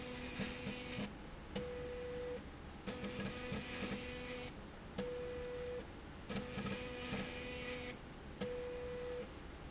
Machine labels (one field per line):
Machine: slide rail